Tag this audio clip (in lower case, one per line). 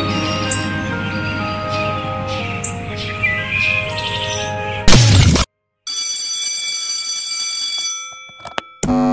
music